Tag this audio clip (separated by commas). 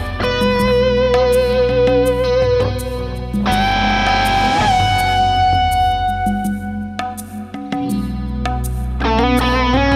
Strum, Plucked string instrument, Musical instrument, Music, Guitar